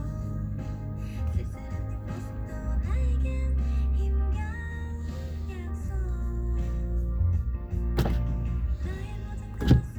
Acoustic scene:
car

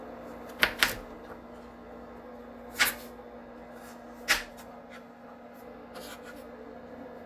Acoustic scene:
kitchen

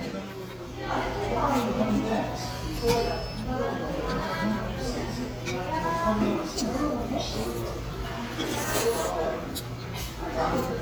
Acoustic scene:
restaurant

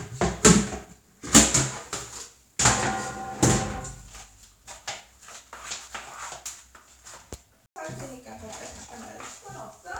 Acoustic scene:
restroom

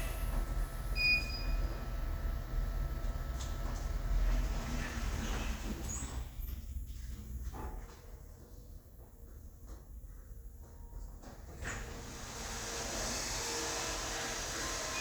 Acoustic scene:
elevator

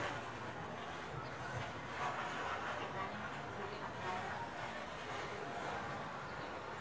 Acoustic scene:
residential area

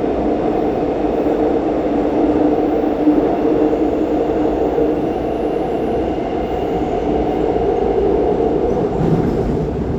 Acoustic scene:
subway train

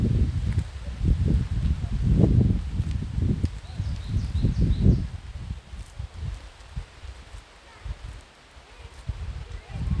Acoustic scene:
park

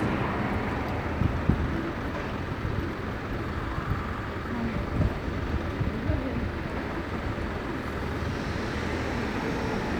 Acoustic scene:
street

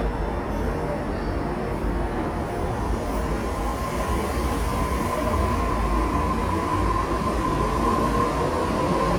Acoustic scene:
subway station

